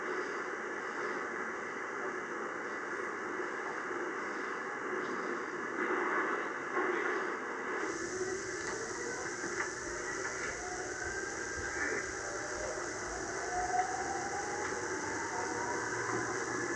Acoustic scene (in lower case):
subway train